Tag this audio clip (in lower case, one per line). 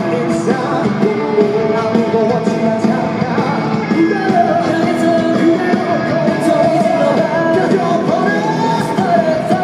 music
male singing